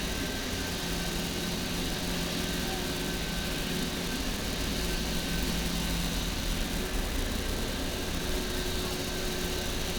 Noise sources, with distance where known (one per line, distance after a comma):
unidentified powered saw